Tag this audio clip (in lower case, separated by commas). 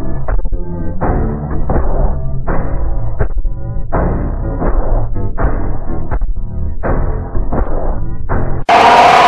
music